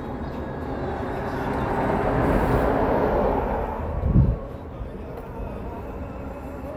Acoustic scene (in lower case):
street